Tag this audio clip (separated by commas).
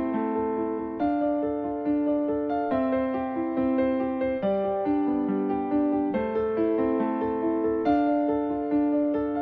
Electric piano, Music